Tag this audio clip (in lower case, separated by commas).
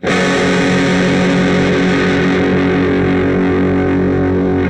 music, plucked string instrument, musical instrument, guitar, electric guitar